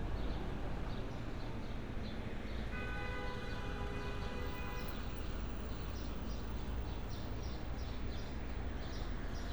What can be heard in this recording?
car horn